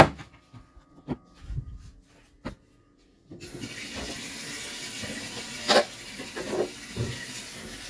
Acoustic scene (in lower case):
kitchen